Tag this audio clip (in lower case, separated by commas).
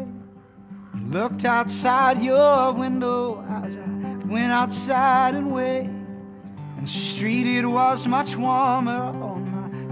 music